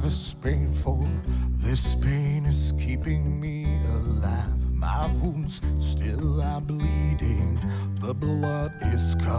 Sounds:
Music

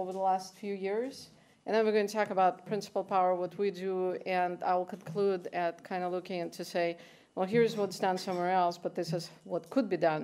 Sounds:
Speech

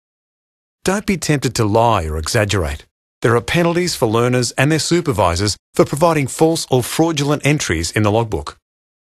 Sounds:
Speech

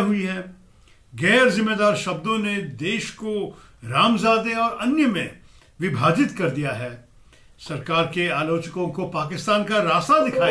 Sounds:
Male speech, Speech, monologue

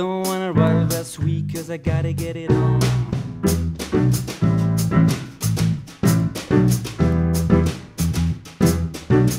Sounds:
Piano, Musical instrument

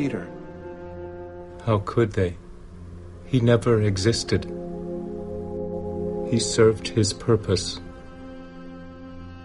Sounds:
Speech, Music

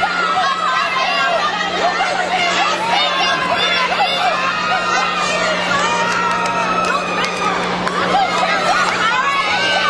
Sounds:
Speech

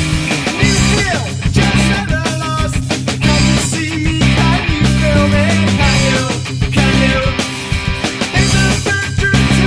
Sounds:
Music, Ska, Rhythm and blues

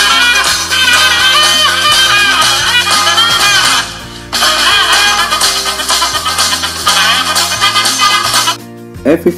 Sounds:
Music, Speech

